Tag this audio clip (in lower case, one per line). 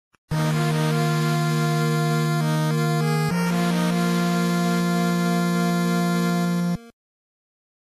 video game music
music